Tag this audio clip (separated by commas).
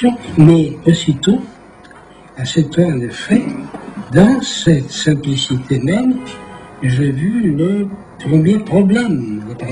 Speech